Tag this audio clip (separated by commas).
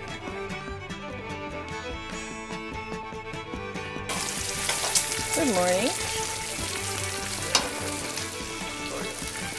Sizzle